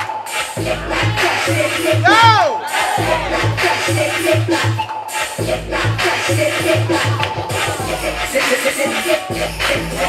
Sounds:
Scratching (performance technique)

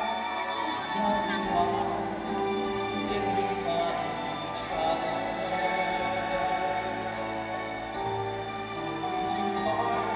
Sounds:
Music, Male singing

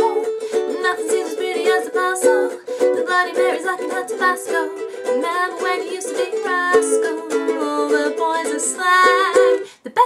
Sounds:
inside a small room, Music, Singing, Ukulele

